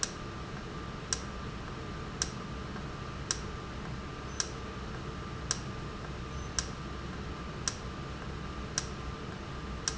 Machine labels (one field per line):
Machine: valve